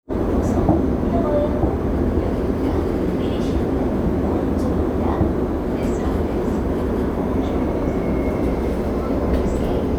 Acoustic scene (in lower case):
subway train